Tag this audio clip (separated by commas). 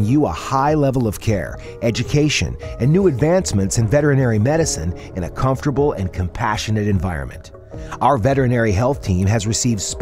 Speech, Music